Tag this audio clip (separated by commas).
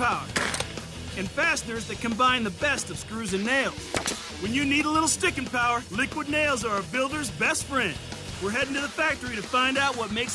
Music, Speech